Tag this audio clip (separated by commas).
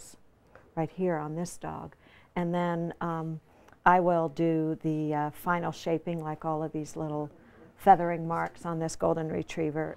Speech